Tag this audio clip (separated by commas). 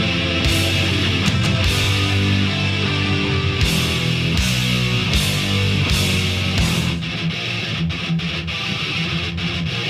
Music, Heavy metal